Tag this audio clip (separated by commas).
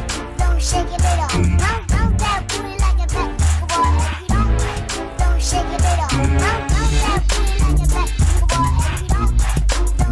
Hip hop music, Music